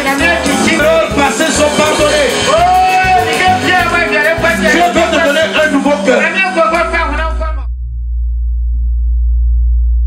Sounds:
speech, music

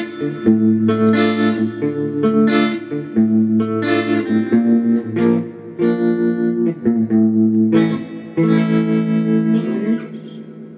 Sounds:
musical instrument, music, guitar, plucked string instrument, bass guitar

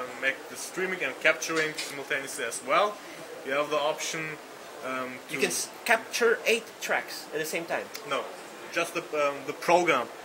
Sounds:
inside a small room, speech

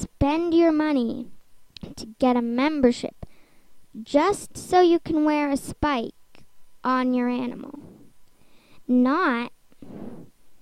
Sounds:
speech

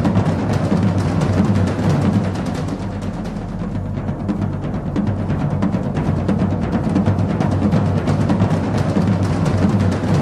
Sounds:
music

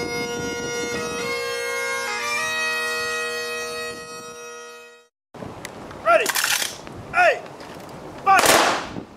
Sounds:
woodwind instrument, bagpipes

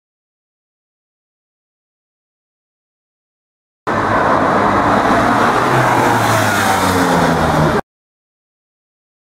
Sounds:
outside, urban or man-made, car, vehicle

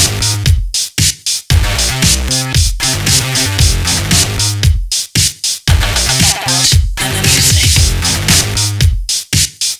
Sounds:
music, disco

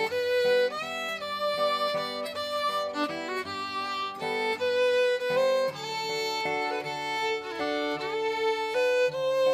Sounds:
pizzicato, musical instrument, fiddle, music

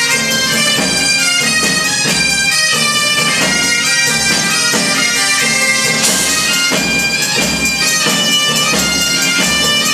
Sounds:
music

